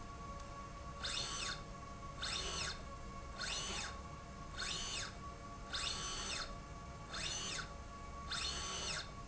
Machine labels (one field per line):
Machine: slide rail